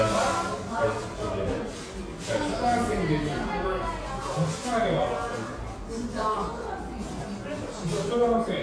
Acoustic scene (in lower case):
cafe